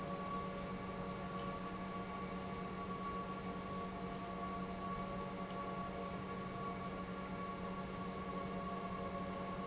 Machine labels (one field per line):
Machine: pump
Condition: normal